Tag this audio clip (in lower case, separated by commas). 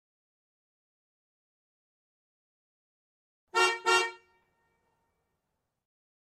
car, vehicle horn, alarm, motor vehicle (road), vehicle